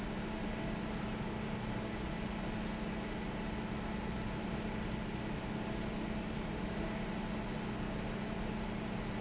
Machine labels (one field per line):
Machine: fan